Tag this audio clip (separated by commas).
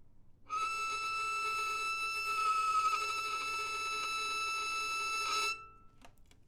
Bowed string instrument, Music, Musical instrument